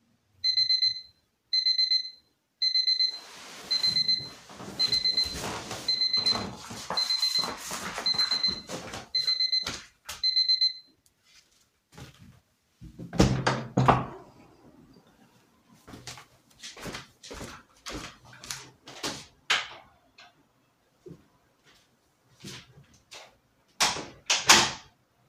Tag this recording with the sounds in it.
phone ringing, footsteps, light switch, window, door